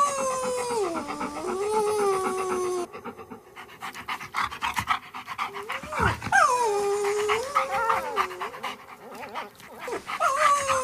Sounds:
dog whimpering

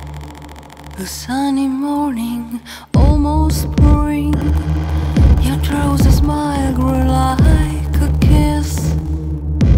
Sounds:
music

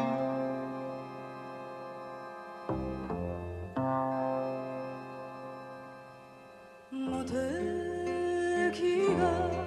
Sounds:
foghorn

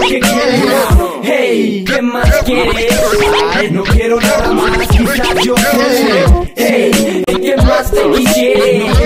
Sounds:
music
rapping
hip hop music

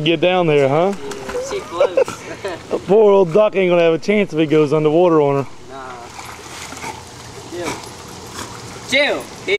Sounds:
animal
speech

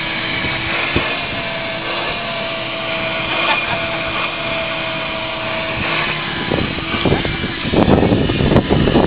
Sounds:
vehicle
car

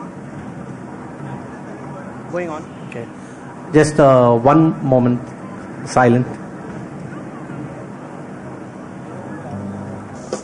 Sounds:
speech

